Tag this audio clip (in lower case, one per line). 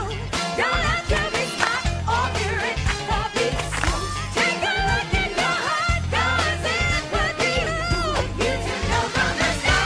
music